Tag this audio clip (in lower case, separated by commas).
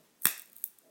crack